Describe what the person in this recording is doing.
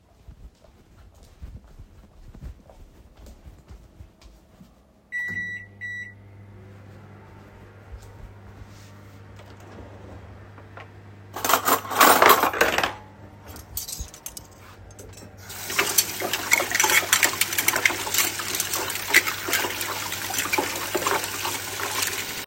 I entered the kitchen and started the microwave. Then I opened the drawer and took out three forks. I put my phone down next to the sink and started to wash the forks with water.